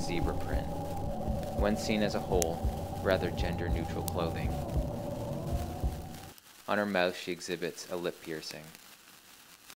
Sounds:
Speech

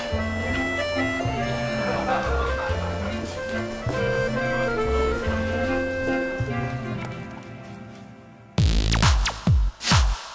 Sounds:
Laughter, Music

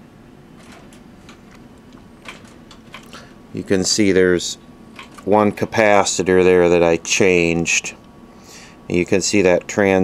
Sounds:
Speech

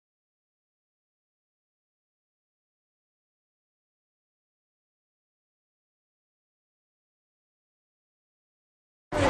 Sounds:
Speech, inside a public space, underground

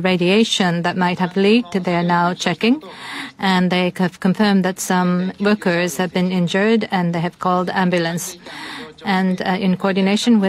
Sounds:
Speech

